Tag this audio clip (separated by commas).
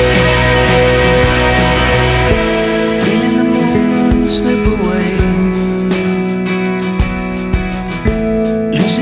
Music